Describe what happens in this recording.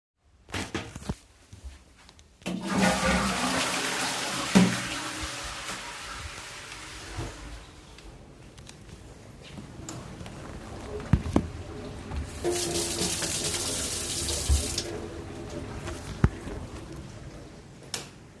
I flushed the toilet. Then I stood up, washed my hands, switched off the light and went out of the bathroom.